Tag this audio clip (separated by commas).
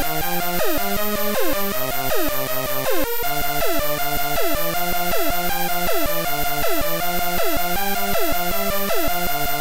Music